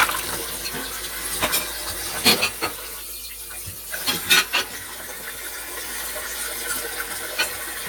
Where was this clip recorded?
in a kitchen